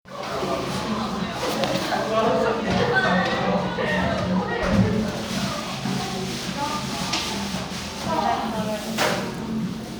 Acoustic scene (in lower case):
crowded indoor space